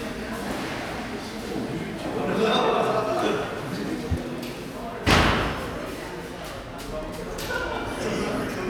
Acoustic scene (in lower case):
cafe